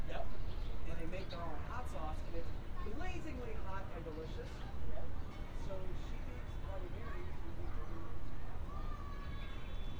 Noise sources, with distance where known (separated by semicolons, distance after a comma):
person or small group talking, near